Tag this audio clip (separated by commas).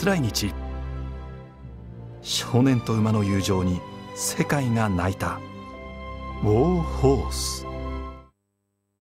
Music, Speech